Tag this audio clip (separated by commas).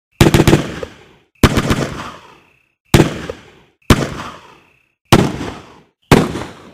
Explosion, Gunshot